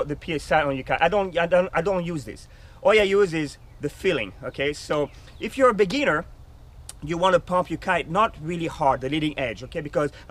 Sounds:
speech

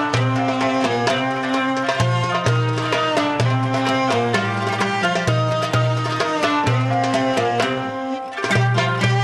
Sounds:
music

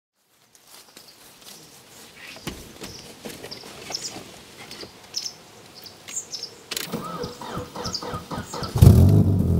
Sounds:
car, dove, vehicle

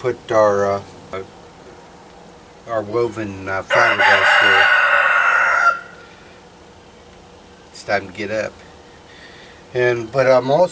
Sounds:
speech, vehicle

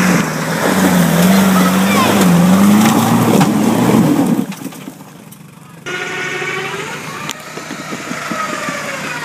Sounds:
vehicle, speech

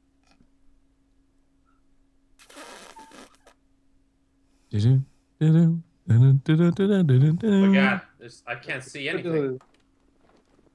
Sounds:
speech

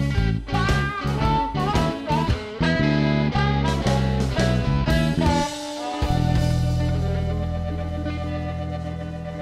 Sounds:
music

